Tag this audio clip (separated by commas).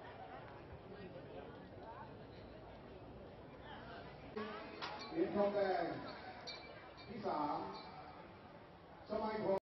Speech, outside, urban or man-made